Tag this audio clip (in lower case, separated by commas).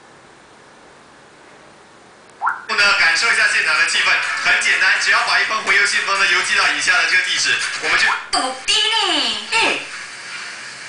speech